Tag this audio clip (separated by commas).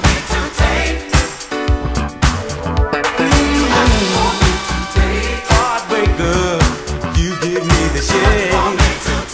Music, Funk